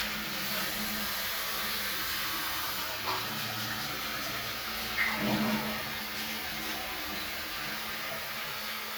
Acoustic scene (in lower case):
restroom